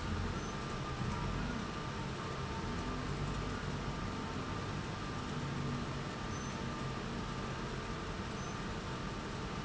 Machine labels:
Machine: pump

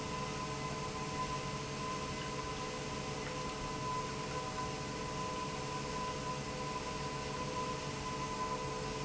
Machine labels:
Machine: pump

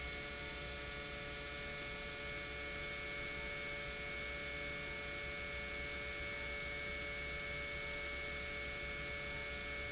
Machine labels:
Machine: pump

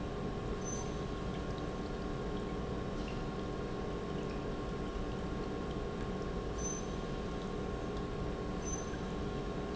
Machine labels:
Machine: pump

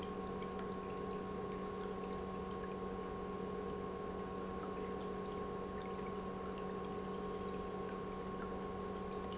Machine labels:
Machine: pump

